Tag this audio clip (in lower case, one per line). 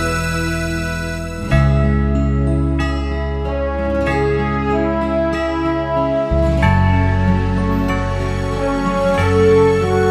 music